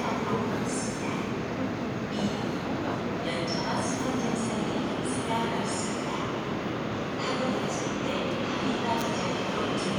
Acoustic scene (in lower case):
subway station